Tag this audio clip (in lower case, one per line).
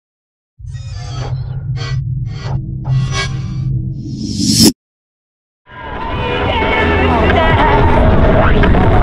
aircraft
vehicle
music
speech